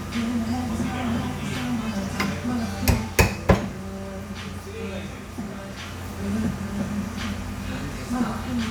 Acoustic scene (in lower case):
cafe